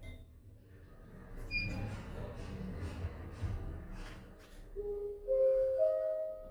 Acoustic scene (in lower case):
elevator